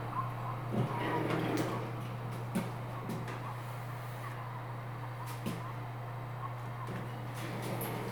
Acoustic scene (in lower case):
elevator